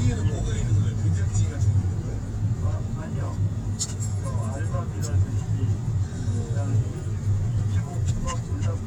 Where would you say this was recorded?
in a car